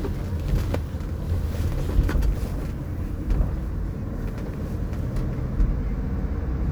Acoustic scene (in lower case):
car